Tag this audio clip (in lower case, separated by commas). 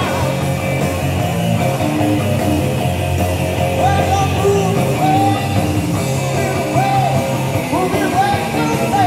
guitar, musical instrument, plucked string instrument, blues, country, music